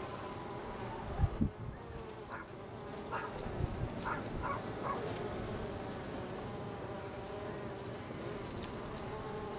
Buzzing of nearby insects with wind blowing and a dog barking